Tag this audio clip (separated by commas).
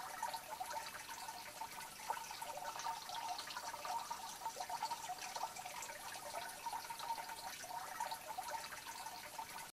Stream